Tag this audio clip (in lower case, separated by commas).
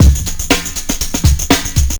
drum, percussion, tambourine, musical instrument, music